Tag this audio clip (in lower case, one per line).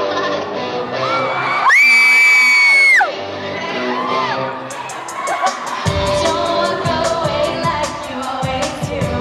music
speech